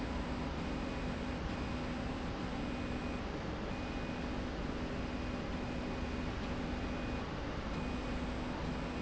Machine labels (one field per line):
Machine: slide rail